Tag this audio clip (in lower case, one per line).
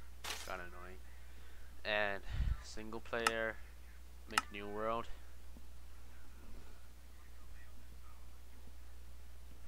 speech